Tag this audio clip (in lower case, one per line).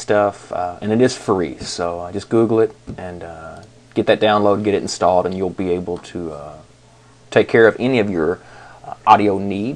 speech